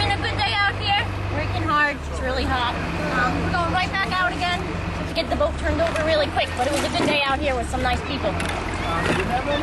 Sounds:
Vehicle, Speech, Water vehicle

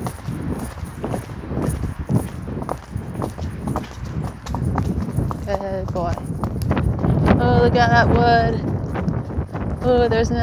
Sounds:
horse clip-clop

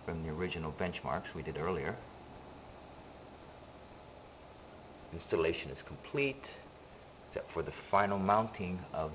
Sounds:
Speech

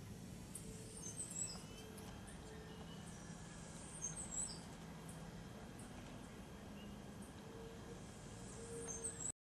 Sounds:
Bird

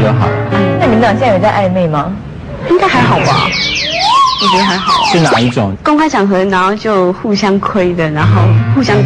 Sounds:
Speech, inside a large room or hall, Music

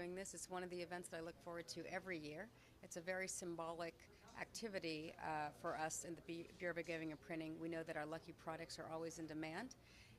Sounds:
Speech

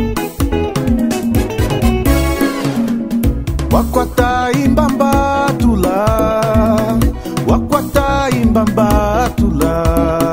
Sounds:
Funk, Music

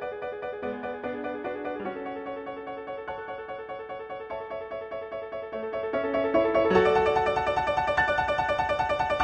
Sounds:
Music

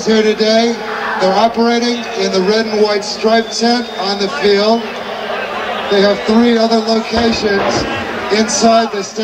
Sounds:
Crowd

